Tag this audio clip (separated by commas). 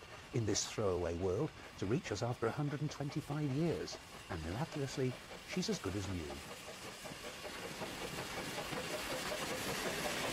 Speech